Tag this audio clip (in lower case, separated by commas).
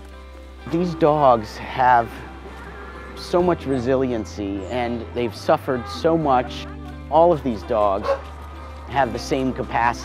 pets, dog, whimper (dog), animal, speech, bow-wow, music